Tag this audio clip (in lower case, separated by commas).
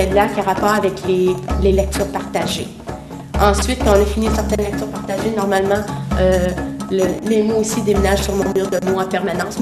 music, speech